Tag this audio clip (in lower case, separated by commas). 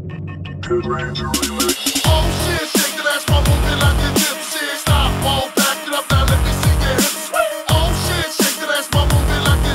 drum and bass, music